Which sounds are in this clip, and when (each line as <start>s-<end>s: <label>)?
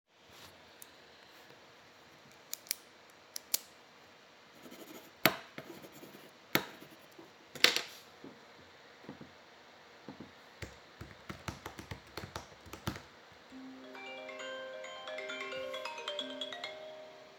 10.6s-13.1s: keyboard typing
13.4s-17.4s: phone ringing